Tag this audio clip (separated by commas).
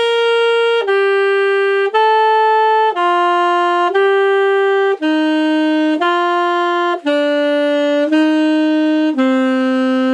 playing saxophone